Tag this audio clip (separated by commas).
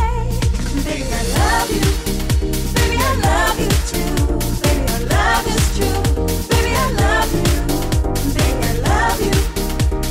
Music